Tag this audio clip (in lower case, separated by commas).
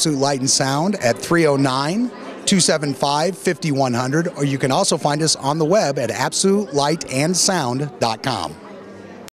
speech babble, speech